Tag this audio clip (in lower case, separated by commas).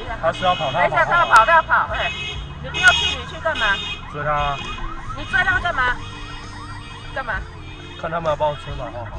vehicle, speech, car, music